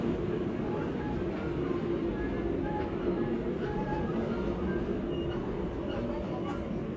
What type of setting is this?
subway train